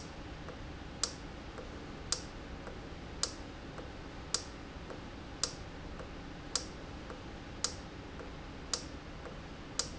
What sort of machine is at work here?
valve